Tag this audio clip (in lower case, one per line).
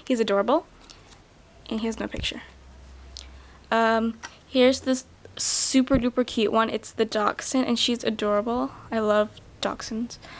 speech